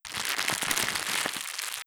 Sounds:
Crackle

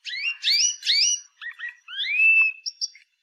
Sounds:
Bird, Wild animals, Animal, bird song, Chirp

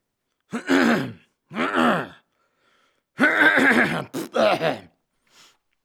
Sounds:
Cough, Respiratory sounds

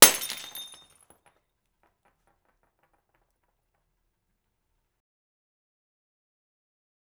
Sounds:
Glass, Shatter

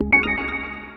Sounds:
Music, Organ, Keyboard (musical), Musical instrument

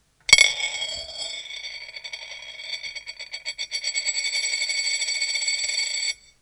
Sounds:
Coin (dropping), home sounds

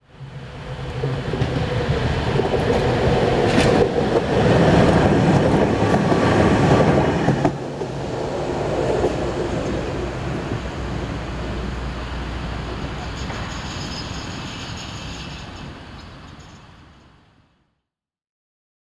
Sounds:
Vehicle

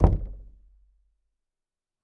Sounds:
Domestic sounds, Knock, Door

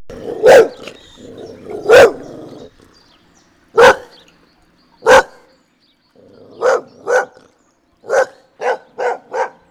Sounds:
Animal, pets, Dog, Bark

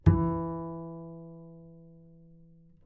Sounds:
Musical instrument, Bowed string instrument, Music

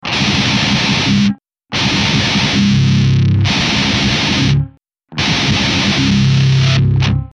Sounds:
Music, Musical instrument, Plucked string instrument, Guitar

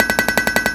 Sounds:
Tools

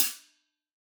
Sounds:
Music, Percussion, Cymbal, Musical instrument, Hi-hat

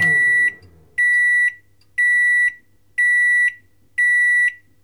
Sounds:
Microwave oven, home sounds

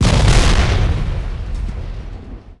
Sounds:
Explosion

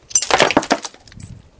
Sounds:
Shatter, Glass

